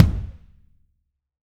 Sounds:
Musical instrument, Percussion, Bass drum, Drum, Music

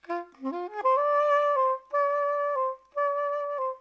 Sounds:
woodwind instrument, Musical instrument, Music

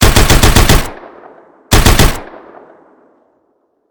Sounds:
Explosion, Gunshot

